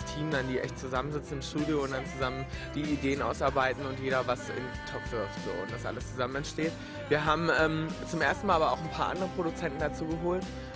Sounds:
music
speech

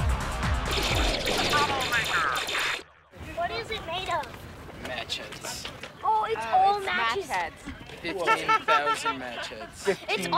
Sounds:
speech
music

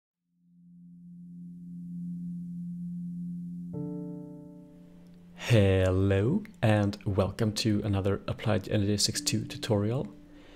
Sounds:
music
inside a small room
speech

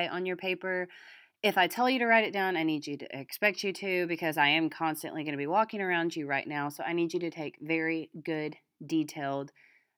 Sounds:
speech

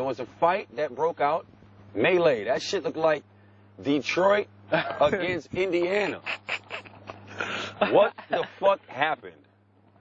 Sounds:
speech

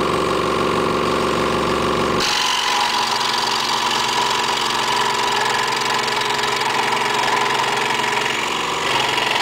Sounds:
sawing

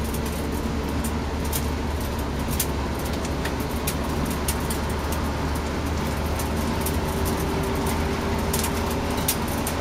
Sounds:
vehicle
bicycle

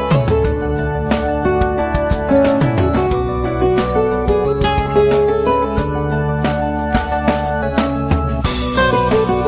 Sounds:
music

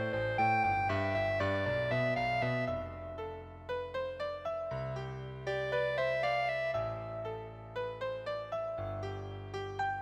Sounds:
clarinet
music

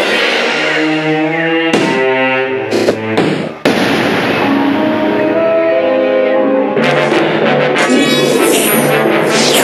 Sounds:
music

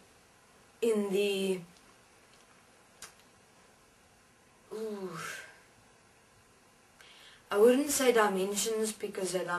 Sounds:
speech

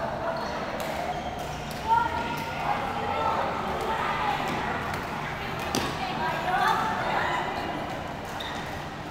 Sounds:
playing badminton

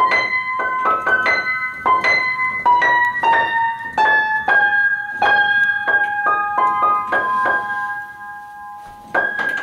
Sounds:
music

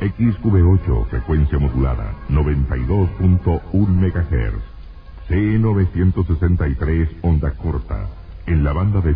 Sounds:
music
speech

